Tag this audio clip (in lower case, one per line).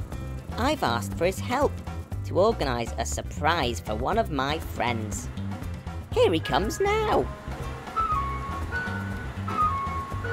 ice cream truck